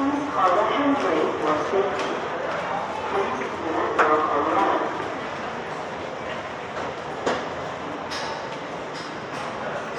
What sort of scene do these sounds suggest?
subway station